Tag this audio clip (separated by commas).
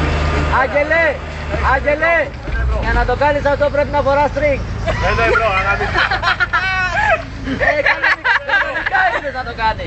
Speech